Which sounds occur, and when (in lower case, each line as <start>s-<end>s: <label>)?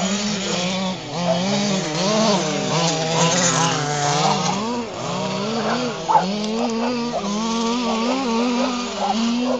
0.0s-9.5s: mechanisms
1.2s-1.8s: bark
4.1s-4.7s: bark
5.6s-5.9s: bark
6.1s-6.3s: bark
6.5s-7.4s: bark
7.8s-9.5s: bark